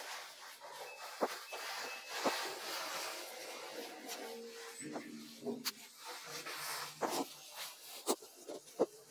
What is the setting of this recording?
elevator